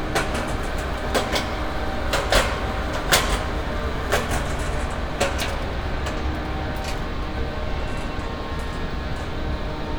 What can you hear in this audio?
unidentified powered saw